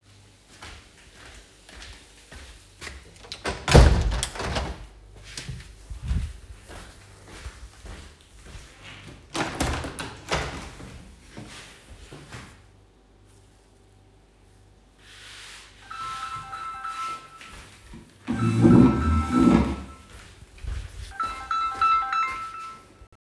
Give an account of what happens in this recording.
I approached a big window handle and turned it to open a window. After that I walked to a small window and closed it. Next, I sat on a bench and suddenly I got a phone call. I walked to the phone.